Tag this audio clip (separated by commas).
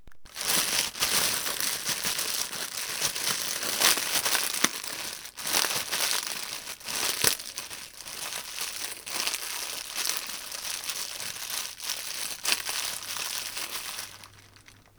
crinkling